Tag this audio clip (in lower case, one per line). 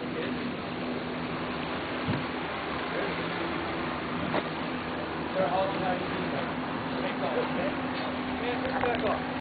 speech